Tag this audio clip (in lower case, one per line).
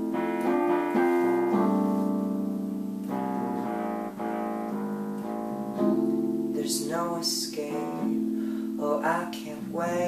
music
keyboard (musical)